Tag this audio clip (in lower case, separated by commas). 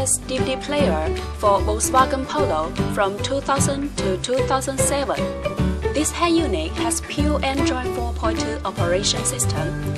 background music, music, speech